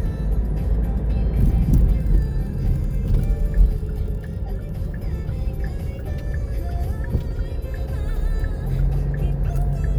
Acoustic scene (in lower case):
car